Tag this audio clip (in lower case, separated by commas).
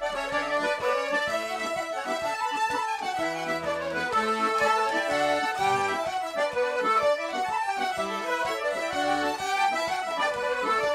blues, music